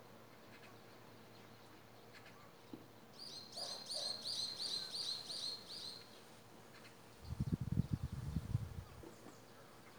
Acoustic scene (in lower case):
park